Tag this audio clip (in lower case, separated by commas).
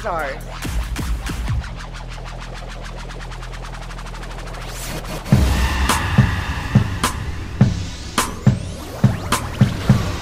speech, music